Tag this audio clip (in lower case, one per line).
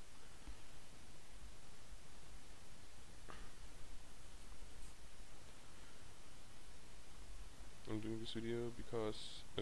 speech